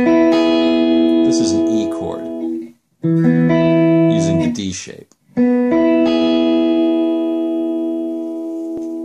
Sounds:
playing electric guitar

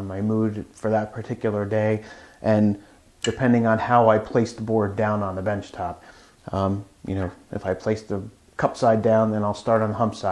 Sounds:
planing timber

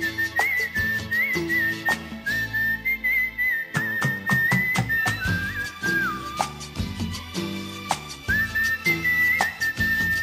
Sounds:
people whistling

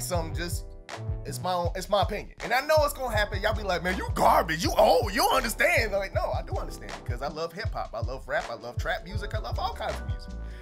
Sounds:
rapping

